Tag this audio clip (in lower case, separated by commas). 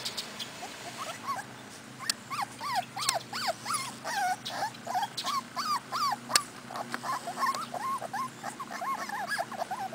dog, domestic animals, outside, rural or natural, animal